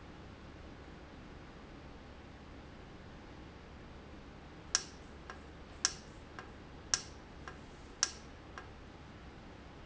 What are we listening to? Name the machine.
valve